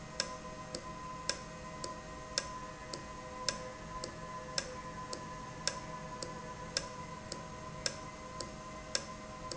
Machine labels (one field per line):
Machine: valve